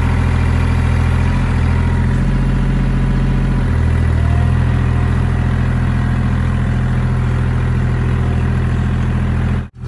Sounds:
tractor digging

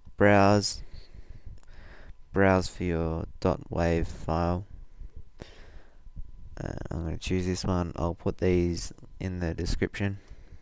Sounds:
Speech

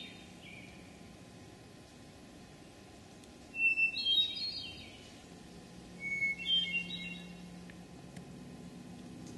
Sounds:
wood thrush calling

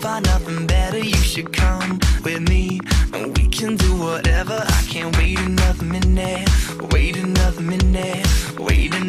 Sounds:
Music

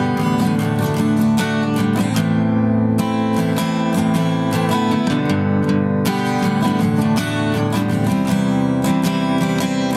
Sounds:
Plucked string instrument, Strum, playing acoustic guitar, Acoustic guitar, Musical instrument, Guitar, Music

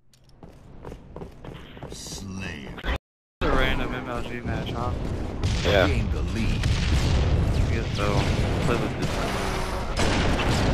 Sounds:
Fusillade, Speech

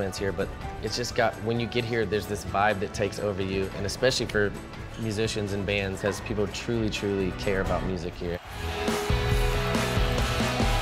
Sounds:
Guitar, Speech, Music, Plucked string instrument

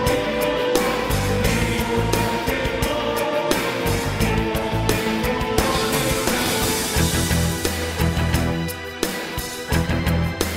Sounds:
Music

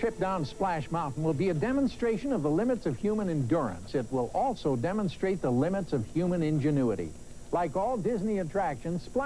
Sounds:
Speech

